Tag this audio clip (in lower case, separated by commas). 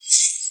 animal, bird, bird call, wild animals